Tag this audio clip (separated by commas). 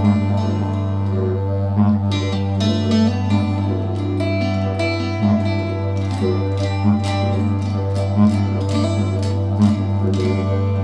Classical music, Music, Bowed string instrument